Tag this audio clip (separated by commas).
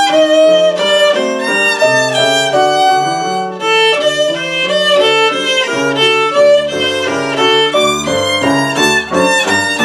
Musical instrument, Music, Violin